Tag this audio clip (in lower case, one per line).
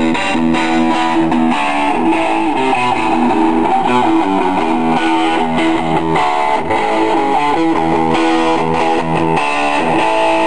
music